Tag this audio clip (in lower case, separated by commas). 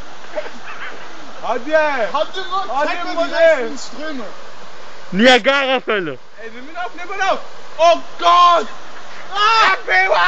stream, speech